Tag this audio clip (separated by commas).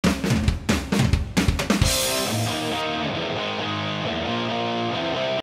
Spray, Speech